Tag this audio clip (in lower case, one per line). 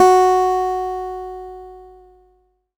music
musical instrument
guitar
acoustic guitar
plucked string instrument